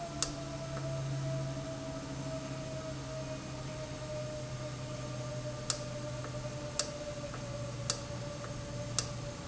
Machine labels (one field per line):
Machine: valve